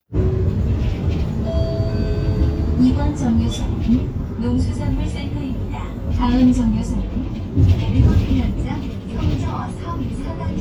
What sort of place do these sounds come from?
bus